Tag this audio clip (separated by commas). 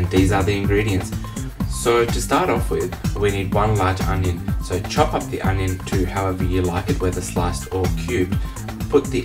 Music, Speech